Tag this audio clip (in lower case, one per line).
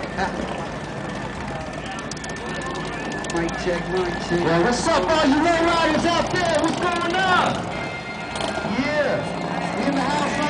vehicle
speech
music